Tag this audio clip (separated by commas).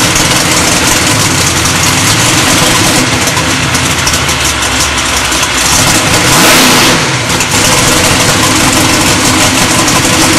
Car passing by